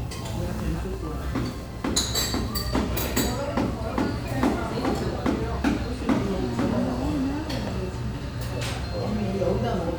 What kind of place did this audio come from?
restaurant